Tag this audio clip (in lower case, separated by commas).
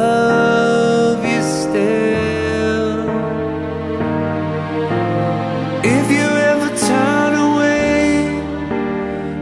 sad music, music